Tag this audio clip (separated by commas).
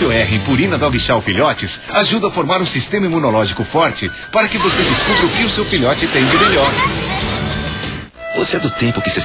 Music, Speech